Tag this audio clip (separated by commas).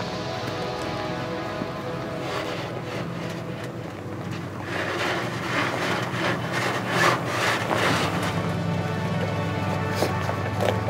Car, Music, Vehicle